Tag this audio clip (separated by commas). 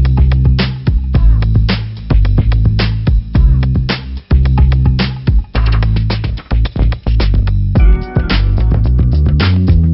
Music